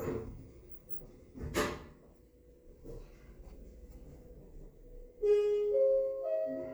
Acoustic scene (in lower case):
elevator